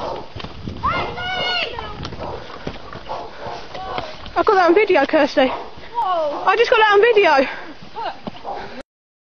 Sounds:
speech

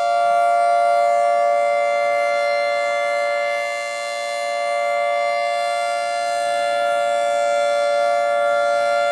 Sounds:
siren
civil defense siren

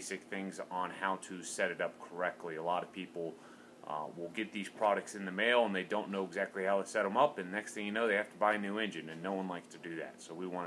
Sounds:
speech

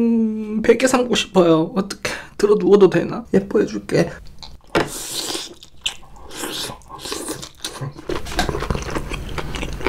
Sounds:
people eating noodle

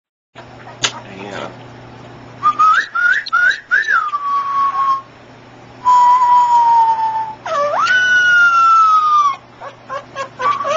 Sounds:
domestic animals
speech
animal
dog

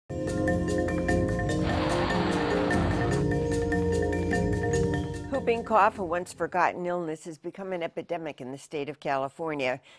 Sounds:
female speech
music
speech

